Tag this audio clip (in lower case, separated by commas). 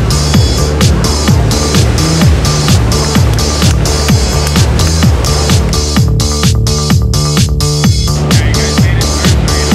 music, ocean, trance music, waves